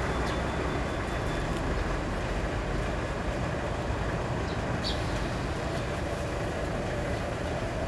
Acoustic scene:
residential area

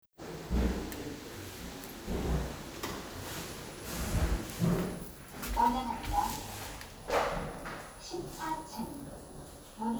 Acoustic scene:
elevator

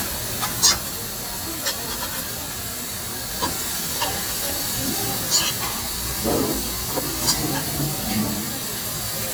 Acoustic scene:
restaurant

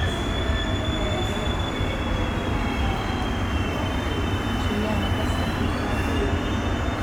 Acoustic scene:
subway station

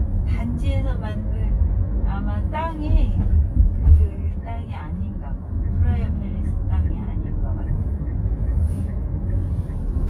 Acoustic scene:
car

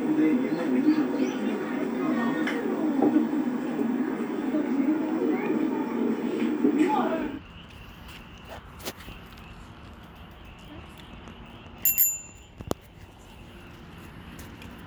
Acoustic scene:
park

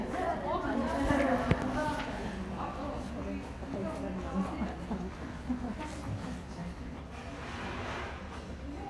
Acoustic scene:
crowded indoor space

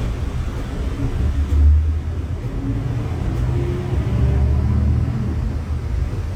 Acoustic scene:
bus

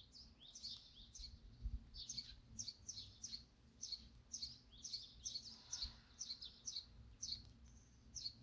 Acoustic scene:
park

